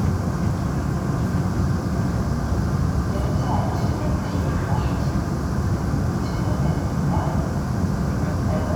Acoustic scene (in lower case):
subway train